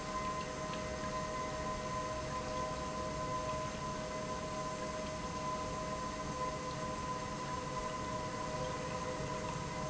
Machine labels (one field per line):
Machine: pump